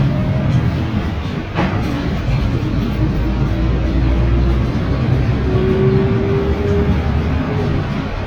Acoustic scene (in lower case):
bus